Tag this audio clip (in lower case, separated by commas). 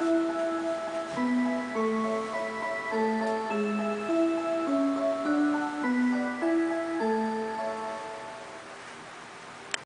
music